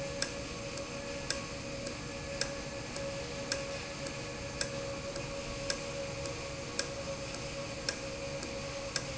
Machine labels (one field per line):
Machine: valve